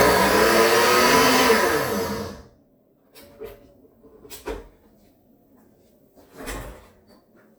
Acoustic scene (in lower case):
kitchen